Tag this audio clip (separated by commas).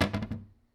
Cupboard open or close, Domestic sounds